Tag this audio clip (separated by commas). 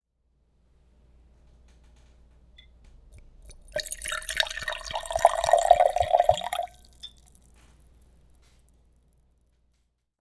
Liquid